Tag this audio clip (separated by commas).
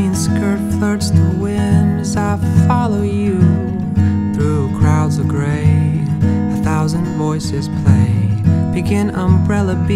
Music